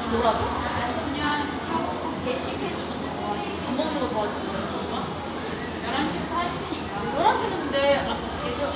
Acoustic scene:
crowded indoor space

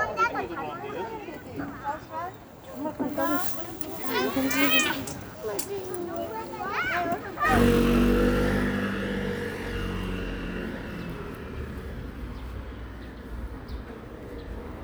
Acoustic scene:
residential area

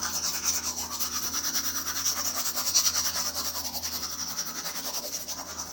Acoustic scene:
restroom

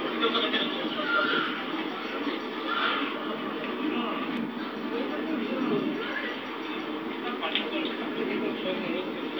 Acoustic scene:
park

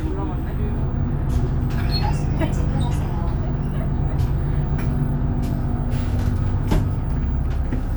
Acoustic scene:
bus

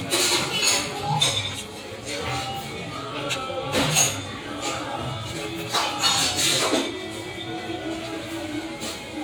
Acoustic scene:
restaurant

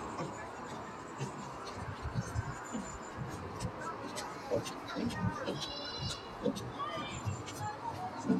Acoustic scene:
park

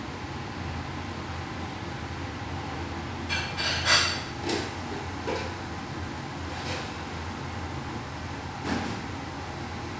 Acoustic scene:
restaurant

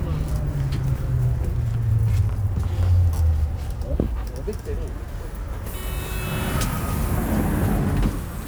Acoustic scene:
bus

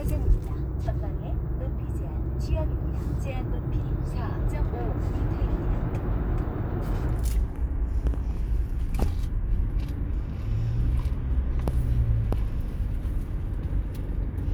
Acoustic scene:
car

